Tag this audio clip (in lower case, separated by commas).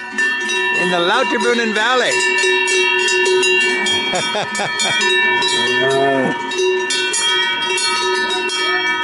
cattle